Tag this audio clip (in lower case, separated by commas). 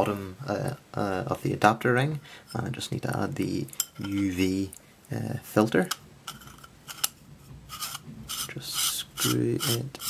inside a small room, speech